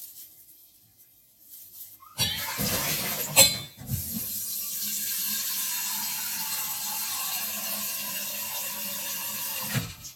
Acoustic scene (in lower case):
kitchen